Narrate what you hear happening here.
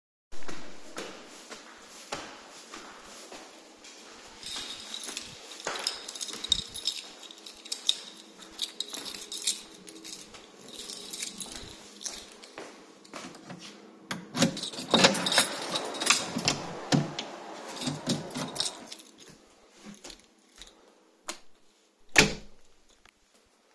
I walk up the stairs, take my keys, and insert them into the door lock. Someone flushes a toilet nearby. I open the door, turn off the light switch, and close the door.